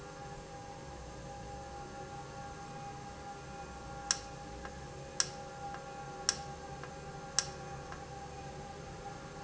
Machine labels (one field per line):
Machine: valve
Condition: normal